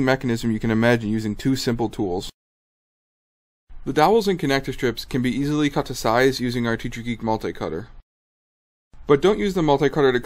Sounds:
Speech

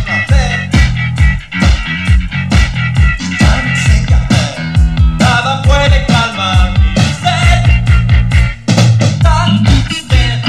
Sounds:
Music

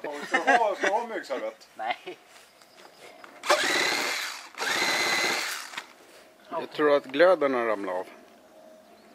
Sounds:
outside, rural or natural, Speech

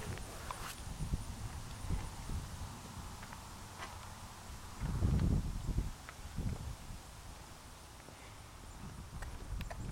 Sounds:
outside, rural or natural

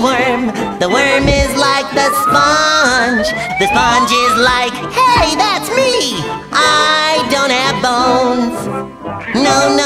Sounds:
Theme music, Music

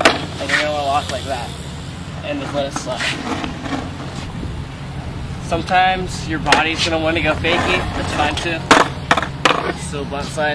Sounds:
Speech

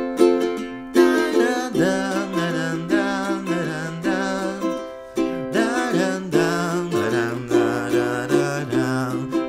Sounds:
playing ukulele

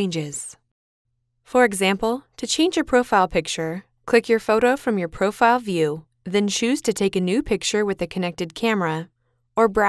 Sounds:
Speech

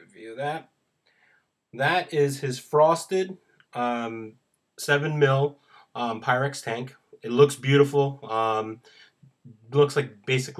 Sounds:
Speech

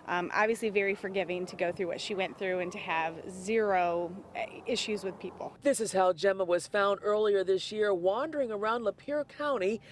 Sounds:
Speech

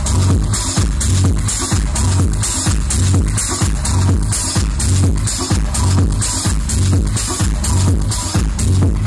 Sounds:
Disco, Music

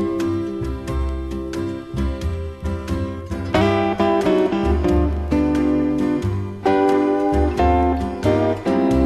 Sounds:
Music

